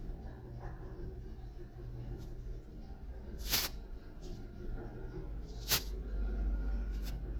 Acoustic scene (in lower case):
elevator